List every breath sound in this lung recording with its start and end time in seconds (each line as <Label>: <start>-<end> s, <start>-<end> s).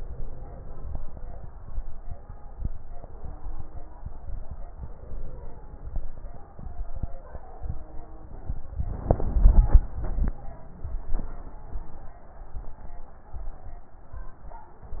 Inhalation: 0.00-1.21 s, 4.75-5.96 s